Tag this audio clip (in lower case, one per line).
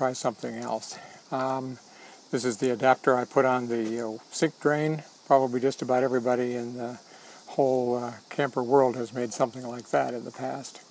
speech